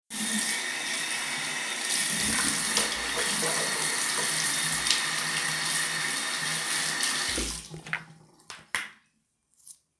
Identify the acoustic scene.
restroom